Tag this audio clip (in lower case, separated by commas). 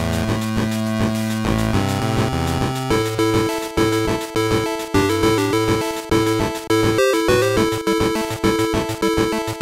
music